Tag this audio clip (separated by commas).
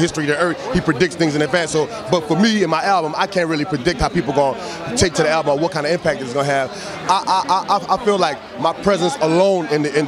Speech